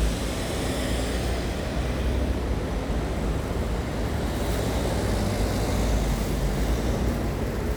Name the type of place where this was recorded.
street